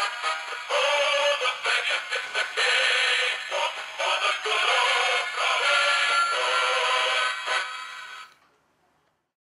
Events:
0.0s-8.3s: music
0.0s-9.3s: background noise
0.7s-7.8s: synthetic singing

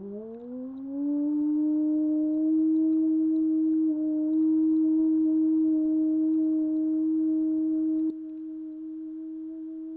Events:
0.0s-9.9s: background noise
0.0s-9.9s: music

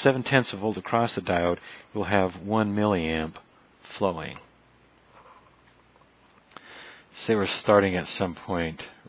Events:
0.0s-1.6s: man speaking
0.0s-9.0s: mechanisms
1.5s-1.7s: generic impact sounds
1.6s-1.9s: breathing
2.0s-3.3s: man speaking
3.1s-3.4s: generic impact sounds
3.8s-4.5s: man speaking
4.3s-4.5s: generic impact sounds
5.1s-5.5s: surface contact
5.6s-5.8s: generic impact sounds
5.9s-6.1s: generic impact sounds
6.3s-6.5s: generic impact sounds
6.6s-7.0s: breathing
7.1s-8.9s: man speaking

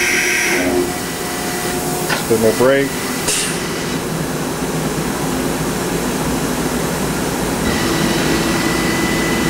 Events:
0.0s-9.4s: mechanisms
2.0s-2.2s: thump
2.3s-2.9s: male speech

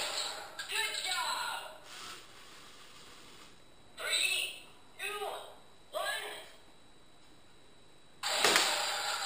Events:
0.0s-0.4s: gunshot
0.0s-9.2s: mechanisms
0.6s-1.2s: generic impact sounds
0.7s-1.8s: female speech
4.0s-4.6s: female speech
4.9s-5.5s: female speech
5.9s-6.4s: female speech
6.5s-6.7s: surface contact
7.2s-7.5s: generic impact sounds
8.4s-8.6s: gunshot

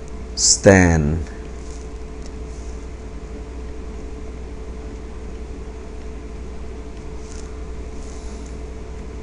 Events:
0.0s-9.2s: mechanisms
0.1s-0.1s: tick
0.4s-1.2s: man speaking
1.2s-1.3s: tick
1.6s-1.9s: surface contact
2.2s-2.3s: tick
2.4s-2.8s: surface contact
6.0s-6.1s: tick
7.0s-7.1s: tick
7.1s-7.5s: surface contact
8.0s-8.5s: surface contact
8.5s-8.6s: tick

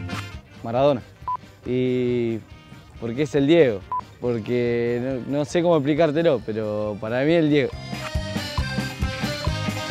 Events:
0.0s-9.9s: music
0.5s-1.0s: man speaking
1.2s-1.3s: beep
1.6s-2.4s: man speaking
3.0s-3.8s: man speaking
3.9s-4.0s: beep
4.1s-7.7s: man speaking

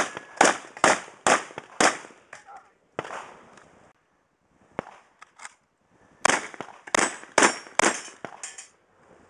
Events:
0.0s-0.2s: gunfire
0.0s-9.2s: background noise
0.1s-0.2s: tick
0.3s-0.6s: gunfire
0.8s-1.1s: gunfire
1.2s-1.5s: gunfire
1.5s-1.6s: tick
1.8s-2.1s: gunfire
2.3s-2.4s: tick
2.4s-2.7s: human voice
3.0s-3.3s: gunfire
3.5s-3.6s: tick
4.7s-5.0s: generic impact sounds
5.2s-5.5s: generic impact sounds
5.2s-5.2s: tick
6.2s-6.5s: gunfire
6.3s-6.4s: generic impact sounds
6.4s-6.4s: generic impact sounds
6.6s-6.7s: tick
6.9s-7.2s: gunfire
7.3s-7.6s: gunfire
7.4s-7.8s: clang
7.8s-8.1s: gunfire
8.2s-8.3s: tick
8.4s-8.7s: generic impact sounds

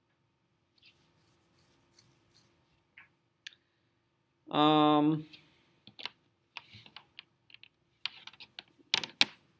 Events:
0.0s-9.5s: mechanisms
0.7s-2.8s: surface contact
2.9s-3.1s: sound effect
3.4s-3.5s: sound effect
4.4s-5.2s: human sounds
5.0s-5.6s: breathing
5.1s-5.4s: generic impact sounds
5.8s-6.1s: generic impact sounds
6.5s-7.2s: generic impact sounds
7.4s-7.7s: generic impact sounds
8.0s-8.7s: generic impact sounds
8.9s-9.4s: generic impact sounds

